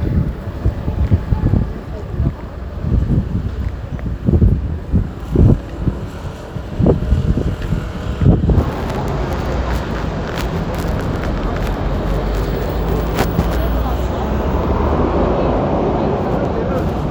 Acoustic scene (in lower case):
street